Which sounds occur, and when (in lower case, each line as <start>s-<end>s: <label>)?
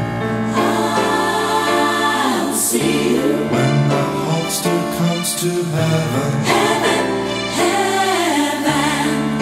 0.0s-9.4s: music
0.5s-4.2s: female singing
4.3s-6.3s: male singing
6.4s-9.3s: female singing